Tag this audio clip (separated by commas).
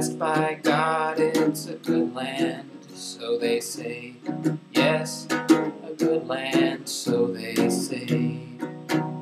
Male singing, Music